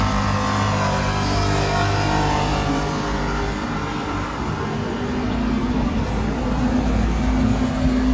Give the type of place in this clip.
street